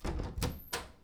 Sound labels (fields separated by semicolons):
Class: door; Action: opening; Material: wooden